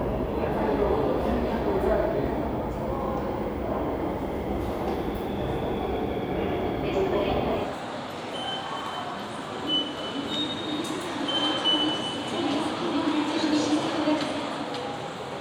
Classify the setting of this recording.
subway station